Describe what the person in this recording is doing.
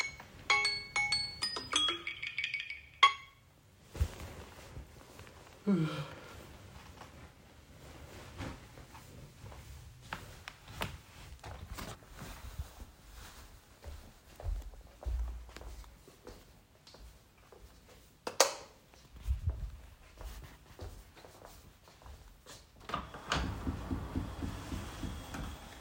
My alarm rang. I stood up walked to the lightswitch and turned it on then I walked to the window and opened it.